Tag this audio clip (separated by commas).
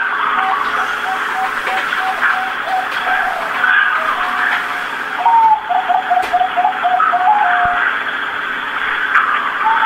Bird, bird song